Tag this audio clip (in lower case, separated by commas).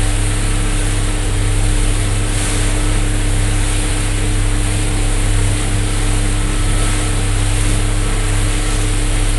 vehicle, speedboat